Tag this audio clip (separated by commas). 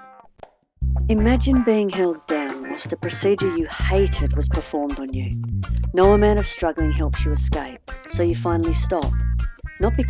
Speech, Music